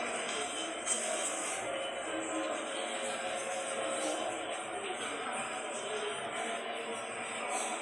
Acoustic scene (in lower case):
subway station